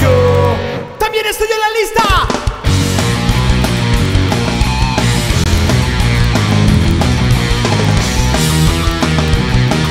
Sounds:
Musical instrument, Singing, Music, Percussion, Heavy metal

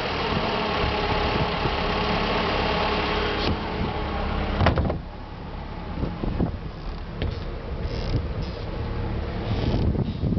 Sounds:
Vehicle, Water vehicle

